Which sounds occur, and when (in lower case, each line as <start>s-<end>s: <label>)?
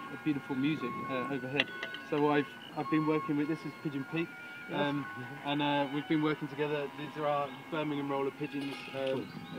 0.0s-9.5s: music
0.0s-9.5s: wind
0.1s-1.6s: male speech
0.1s-9.5s: conversation
1.6s-1.7s: tick
1.8s-1.8s: tick
2.0s-2.0s: tick
2.1s-2.5s: male speech
2.5s-2.7s: chirp
2.7s-4.3s: male speech
4.4s-4.7s: breathing
4.7s-9.5s: male speech
6.7s-7.6s: moo
7.8s-9.5s: chirp